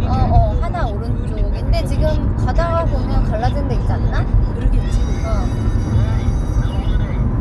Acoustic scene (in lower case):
car